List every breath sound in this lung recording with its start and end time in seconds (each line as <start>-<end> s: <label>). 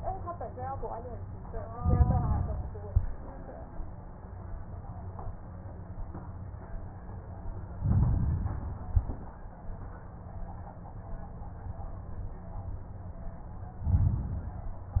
1.71-2.79 s: inhalation
2.79-3.36 s: exhalation
7.77-8.80 s: inhalation
8.80-9.35 s: exhalation
13.85-15.00 s: inhalation